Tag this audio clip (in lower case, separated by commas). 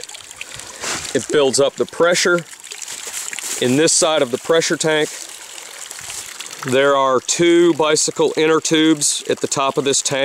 pumping water